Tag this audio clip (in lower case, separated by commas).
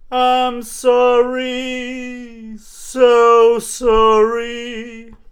male singing, human voice, singing